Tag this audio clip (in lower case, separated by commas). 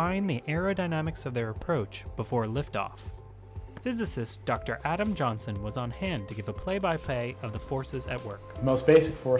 music, speech